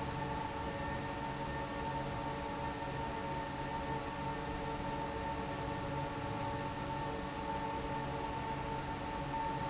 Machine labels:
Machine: fan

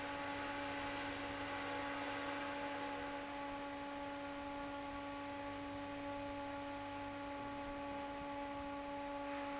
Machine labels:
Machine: fan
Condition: normal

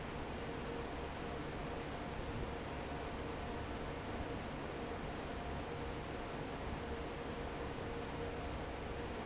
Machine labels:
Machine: fan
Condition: normal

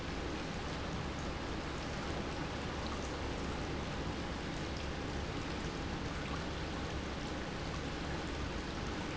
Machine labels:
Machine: pump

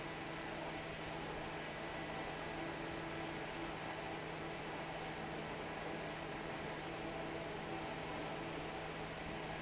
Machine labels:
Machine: fan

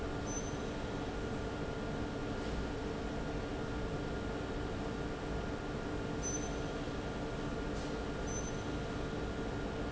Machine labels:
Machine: fan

